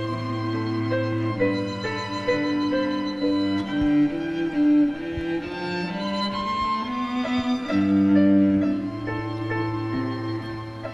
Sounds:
music, sad music

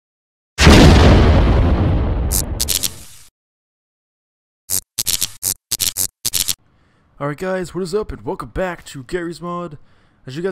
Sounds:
speech

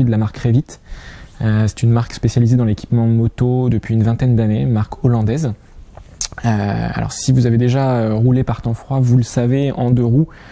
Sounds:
speech

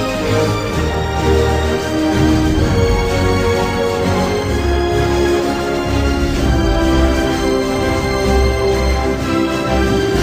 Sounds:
soundtrack music, theme music, music

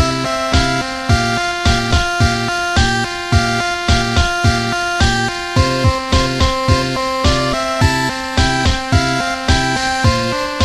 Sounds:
music

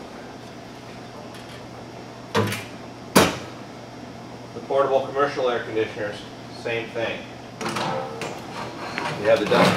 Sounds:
speech

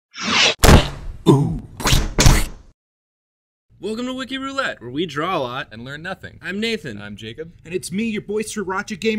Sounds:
speech

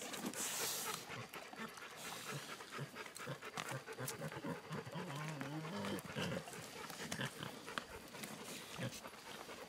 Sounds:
animal, domestic animals, pig

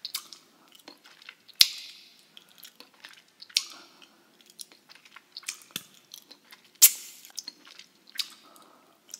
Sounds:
people eating apple

